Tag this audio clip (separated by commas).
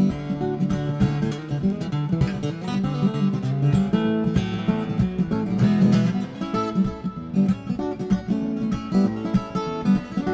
Music